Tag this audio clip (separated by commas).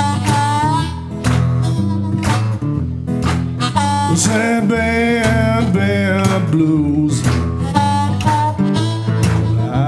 Guitar, Blues, Musical instrument, Acoustic guitar, Music